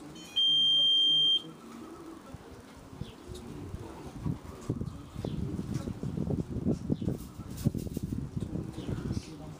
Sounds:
Speech, Pigeon, Animal

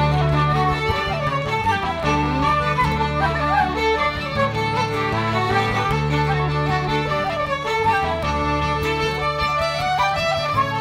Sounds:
Traditional music, Music

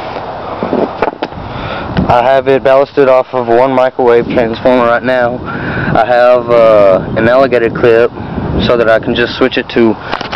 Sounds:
Speech

